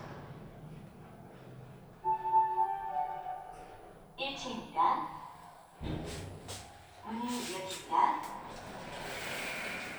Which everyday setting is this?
elevator